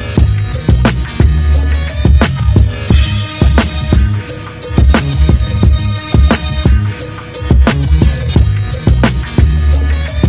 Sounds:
music

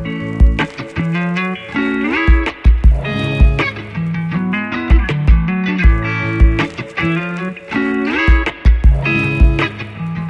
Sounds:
music

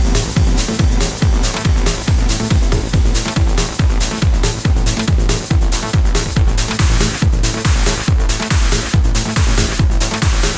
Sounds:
electronic music
music
trance music

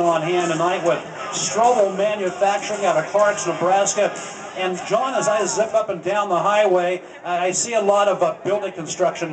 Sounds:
speech

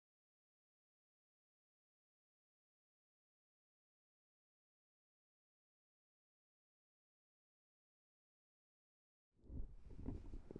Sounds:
silence

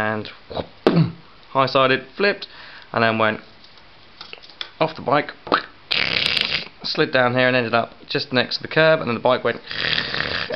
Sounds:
speech
inside a small room

